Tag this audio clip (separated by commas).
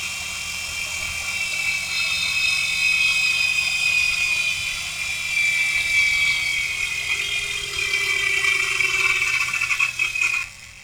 Engine